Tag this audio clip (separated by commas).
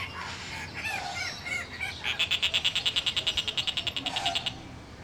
Animal, Bird, Wild animals